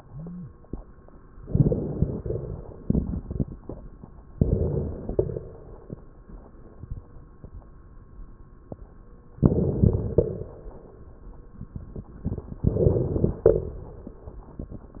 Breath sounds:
1.41-2.16 s: crackles
1.45-2.16 s: inhalation
2.18-3.81 s: exhalation
2.18-3.81 s: crackles
4.34-5.10 s: inhalation
5.09-6.23 s: exhalation
5.09-6.23 s: crackles
9.39-10.15 s: inhalation
9.39-10.15 s: crackles
10.15-11.00 s: exhalation
12.70-13.45 s: inhalation
12.70-13.45 s: crackles

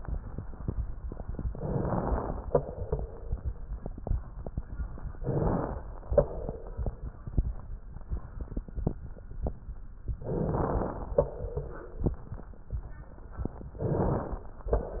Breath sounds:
1.56-2.51 s: inhalation
2.51-3.66 s: exhalation
5.14-6.07 s: inhalation
6.07-7.28 s: exhalation
10.11-11.18 s: inhalation
11.18-12.27 s: exhalation
13.71-14.72 s: inhalation
14.72-15.00 s: exhalation

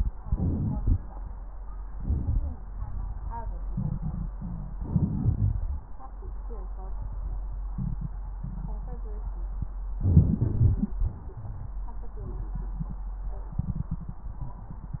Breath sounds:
0.22-0.92 s: inhalation
1.88-2.57 s: inhalation
1.88-2.57 s: crackles
4.77-5.66 s: inhalation
10.03-10.97 s: inhalation
10.43-10.97 s: wheeze

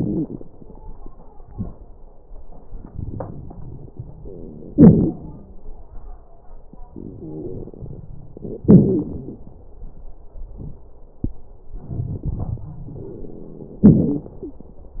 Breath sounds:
0.00-0.35 s: wheeze
2.69-3.91 s: inhalation
2.69-3.91 s: crackles
4.71-5.20 s: exhalation
4.79-5.21 s: crackles
6.92-8.05 s: exhalation
6.94-8.02 s: inhalation
7.16-7.70 s: wheeze
8.63-9.47 s: exhalation
8.67-9.44 s: wheeze
11.70-12.75 s: inhalation
11.70-12.75 s: crackles
13.80-14.36 s: exhalation
13.80-14.36 s: crackles
14.39-14.68 s: wheeze

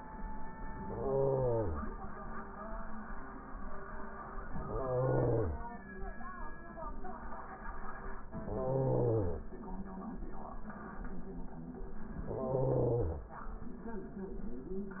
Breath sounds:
0.78-1.92 s: inhalation
4.56-5.70 s: inhalation
8.35-9.50 s: inhalation
12.20-13.28 s: inhalation

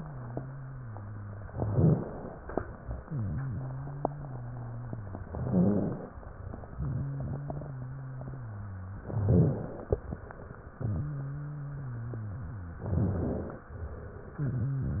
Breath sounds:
0.00-1.44 s: wheeze
1.46-2.54 s: inhalation
1.51-2.53 s: rhonchi
2.58-5.18 s: exhalation
3.02-5.18 s: wheeze
5.18-6.26 s: inhalation
5.19-6.21 s: rhonchi
6.26-8.96 s: exhalation
6.74-8.96 s: wheeze
9.00-10.08 s: inhalation
9.03-10.05 s: rhonchi
10.10-12.68 s: exhalation
10.76-12.68 s: wheeze
12.69-13.71 s: rhonchi
12.72-13.70 s: inhalation
13.74-15.00 s: exhalation
14.32-15.00 s: wheeze

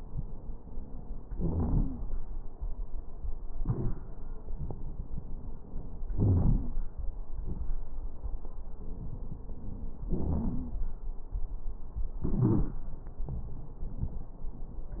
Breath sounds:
1.33-2.01 s: inhalation
1.33-2.01 s: crackles
3.61-4.05 s: exhalation
3.61-4.05 s: crackles
6.14-6.83 s: inhalation
6.14-6.83 s: crackles
7.27-7.75 s: exhalation
7.27-7.75 s: crackles
10.23-10.49 s: wheeze

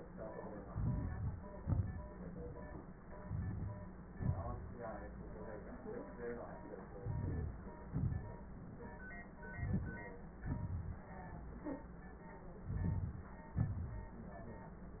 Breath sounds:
0.65-1.43 s: inhalation
0.65-1.43 s: crackles
1.61-2.13 s: exhalation
3.19-3.87 s: crackles
3.22-3.89 s: inhalation
4.15-4.64 s: exhalation
7.00-7.63 s: inhalation
7.87-8.36 s: exhalation
9.49-10.13 s: inhalation
10.38-11.09 s: exhalation
10.38-11.09 s: crackles
12.62-13.34 s: inhalation
12.62-13.34 s: crackles
13.48-14.20 s: exhalation

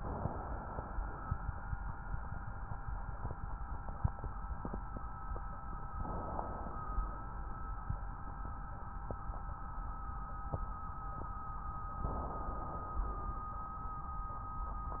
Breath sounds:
0.00-1.42 s: inhalation
5.98-7.40 s: inhalation
12.03-13.03 s: inhalation
13.03-14.19 s: exhalation

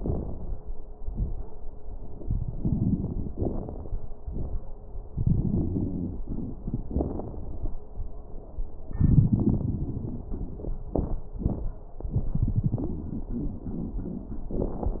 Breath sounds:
5.57-6.20 s: wheeze

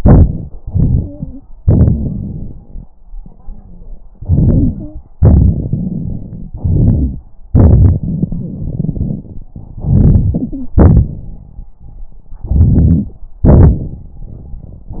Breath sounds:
0.58-1.39 s: inhalation
0.85-1.39 s: stridor
1.61-2.63 s: crackles
1.61-2.64 s: exhalation
3.18-3.88 s: wheeze
4.16-5.02 s: inhalation
4.74-5.02 s: stridor
5.17-6.50 s: exhalation
5.17-6.50 s: crackles
6.56-7.24 s: inhalation
6.56-7.24 s: crackles
7.49-9.24 s: exhalation
7.49-9.24 s: crackles
9.80-10.72 s: inhalation
10.29-10.76 s: stridor
10.78-11.38 s: exhalation
12.41-13.20 s: inhalation
12.41-13.20 s: crackles
13.44-15.00 s: exhalation
13.44-15.00 s: crackles

